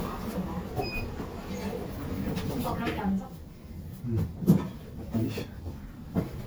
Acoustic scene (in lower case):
elevator